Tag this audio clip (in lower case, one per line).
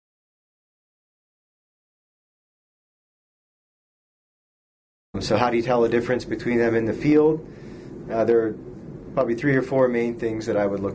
speech